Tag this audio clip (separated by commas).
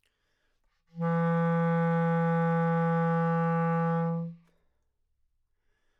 Music, Musical instrument, Wind instrument